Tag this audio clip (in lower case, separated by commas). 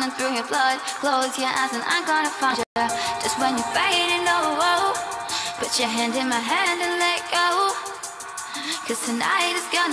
music, musical instrument